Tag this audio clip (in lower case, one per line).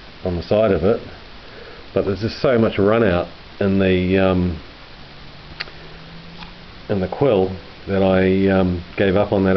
speech